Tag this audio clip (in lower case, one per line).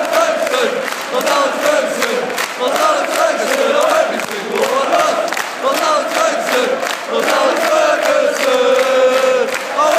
male singing